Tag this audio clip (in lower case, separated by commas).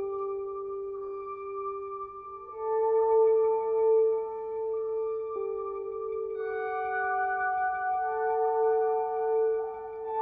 music, sound effect